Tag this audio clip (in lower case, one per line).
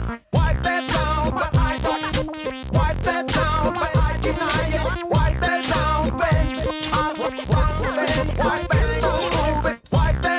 music